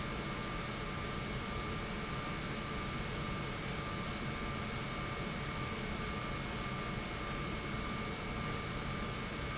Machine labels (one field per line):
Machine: pump